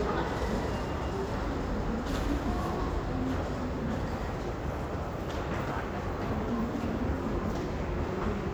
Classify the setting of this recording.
crowded indoor space